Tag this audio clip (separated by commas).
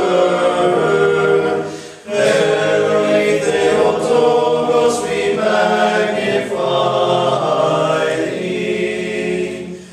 Mantra, Music